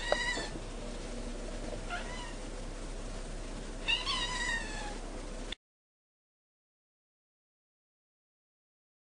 A cat is meowing